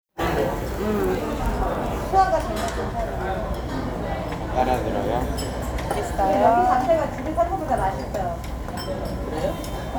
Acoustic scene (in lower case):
restaurant